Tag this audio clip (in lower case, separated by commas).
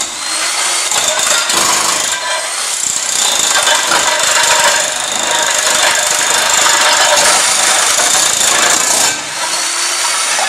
tools, power tool